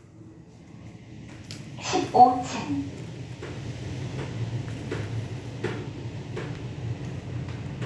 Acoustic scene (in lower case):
elevator